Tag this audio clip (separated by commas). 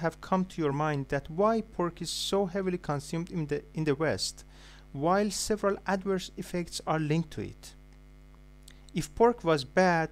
Speech